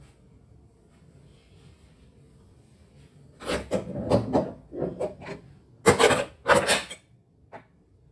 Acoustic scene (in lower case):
kitchen